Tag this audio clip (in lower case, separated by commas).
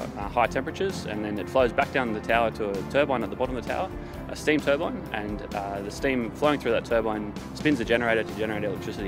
music, speech